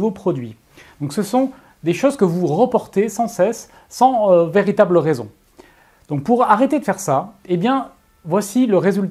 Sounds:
Speech

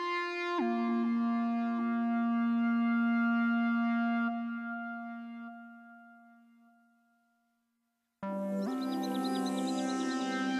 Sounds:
Music

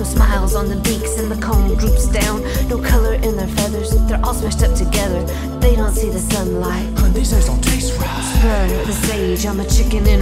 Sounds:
Music

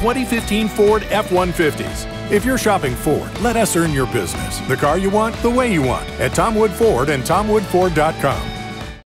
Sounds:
Speech, Music

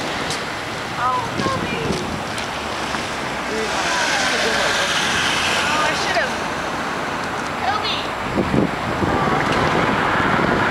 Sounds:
Speech, Car, outside, urban or man-made, Vehicle

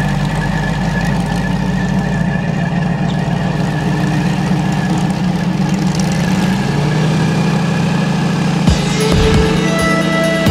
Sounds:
Vehicle, Music, Motorboat, Boat

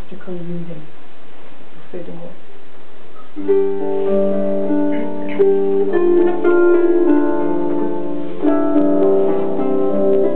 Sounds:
Keyboard (musical)

